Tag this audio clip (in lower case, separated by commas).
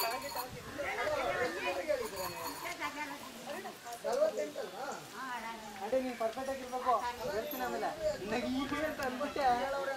speech